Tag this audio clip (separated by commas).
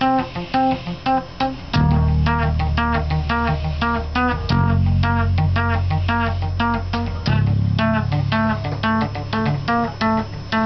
Pizzicato